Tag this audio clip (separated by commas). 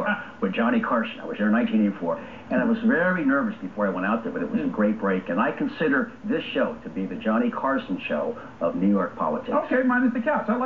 Speech